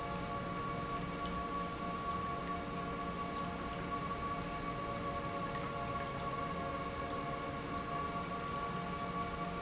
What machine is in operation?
pump